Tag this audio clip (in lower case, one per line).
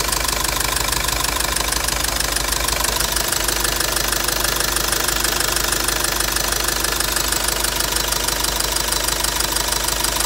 car engine knocking